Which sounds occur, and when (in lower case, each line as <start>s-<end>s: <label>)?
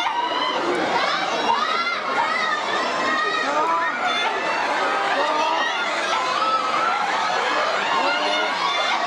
0.0s-9.0s: speech noise
0.0s-9.0s: shout
3.4s-3.9s: male speech
4.9s-5.6s: male speech
8.0s-8.5s: male speech